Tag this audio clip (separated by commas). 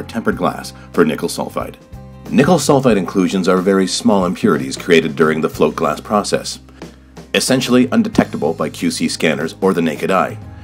Speech, Music